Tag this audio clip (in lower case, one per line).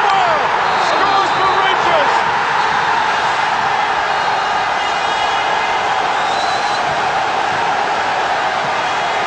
people cheering